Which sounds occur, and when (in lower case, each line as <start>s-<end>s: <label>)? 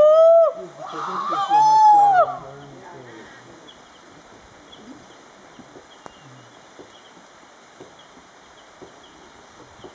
0.0s-0.5s: human voice
0.0s-9.9s: wind
0.5s-3.7s: male speech
0.5s-3.7s: conversation
0.8s-2.3s: human voice
2.4s-2.6s: bird song
2.7s-3.1s: female speech
3.0s-3.4s: bird song
3.7s-4.0s: bird song
4.7s-5.1s: bird song
5.5s-5.6s: bird song
5.5s-5.6s: generic impact sounds
5.7s-5.8s: generic impact sounds
5.9s-6.4s: bird song
6.0s-6.1s: tick
6.7s-6.8s: generic impact sounds
6.9s-7.1s: bird song
7.8s-7.9s: generic impact sounds
7.9s-8.0s: bird song
8.5s-8.7s: bird song
8.8s-8.9s: generic impact sounds
9.0s-9.1s: bird song
9.5s-9.6s: generic impact sounds
9.8s-9.9s: bird song
9.8s-9.9s: generic impact sounds